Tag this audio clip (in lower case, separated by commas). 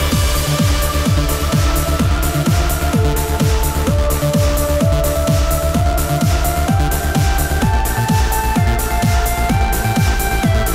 electronic music, music